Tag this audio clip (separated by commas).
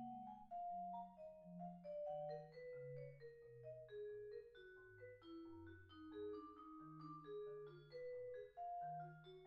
Percussion, Music